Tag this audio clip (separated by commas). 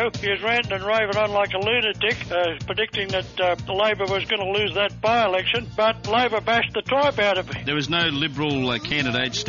Music, Speech